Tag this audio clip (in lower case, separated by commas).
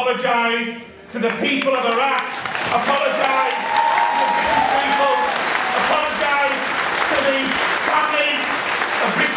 male speech, speech, monologue